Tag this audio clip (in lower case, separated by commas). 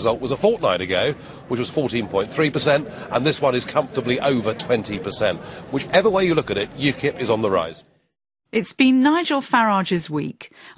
speech